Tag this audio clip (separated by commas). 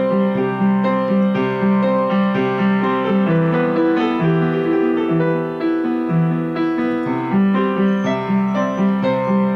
Music